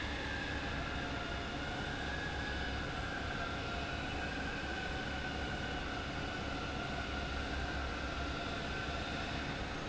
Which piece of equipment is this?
fan